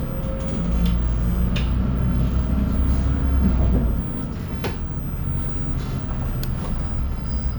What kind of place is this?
bus